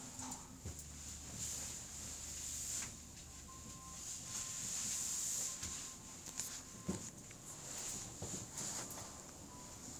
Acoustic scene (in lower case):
elevator